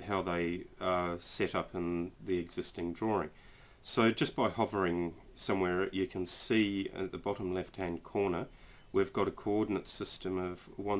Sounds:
Speech

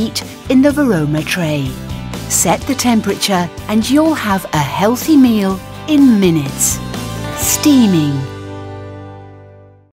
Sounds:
Speech, Music

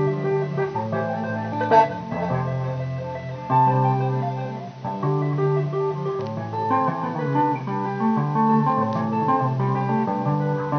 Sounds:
Music, Musical instrument

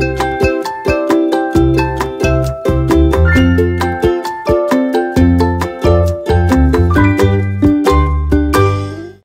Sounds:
Music, Glass

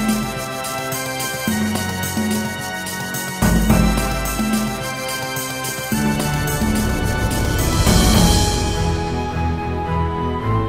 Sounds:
Music

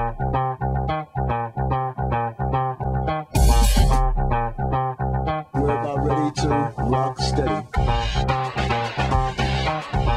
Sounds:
Bass guitar, Music

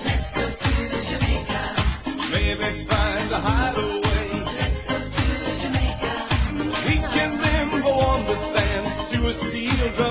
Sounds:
Dance music, Music

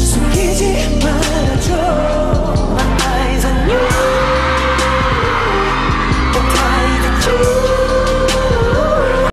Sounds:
Music

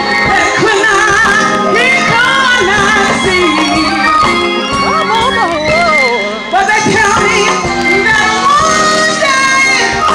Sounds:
Music, Female singing

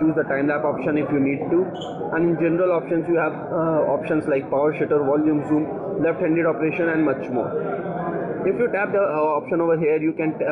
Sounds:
Speech

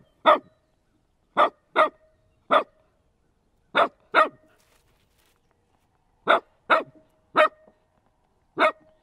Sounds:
dog barking

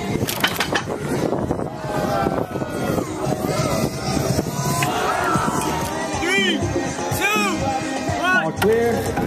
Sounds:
Speech, Music

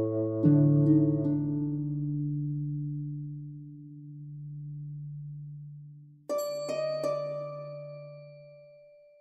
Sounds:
Music, Soundtrack music

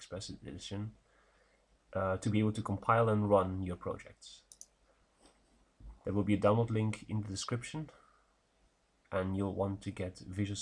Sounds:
Speech

